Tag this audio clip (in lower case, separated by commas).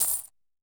coin (dropping), domestic sounds